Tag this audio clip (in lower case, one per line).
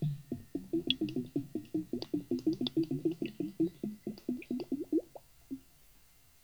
domestic sounds
water
gurgling
bathtub (filling or washing)